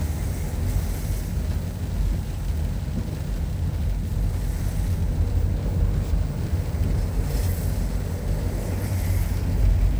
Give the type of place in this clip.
car